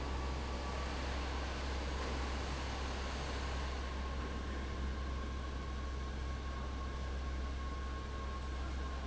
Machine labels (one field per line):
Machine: fan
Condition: abnormal